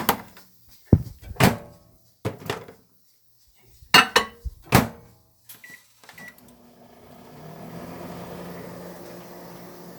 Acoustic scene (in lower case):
kitchen